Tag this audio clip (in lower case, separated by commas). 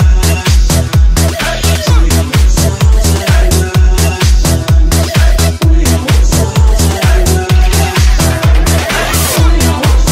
music, electronic dance music, dance music, electronic music